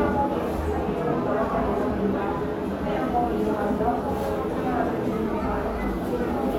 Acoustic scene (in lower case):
crowded indoor space